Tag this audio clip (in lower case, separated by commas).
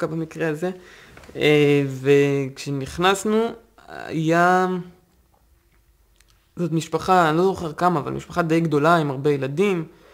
speech